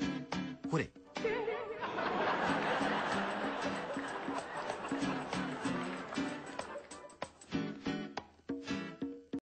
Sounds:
speech, music

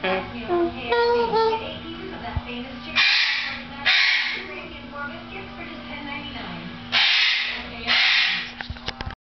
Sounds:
speech, music

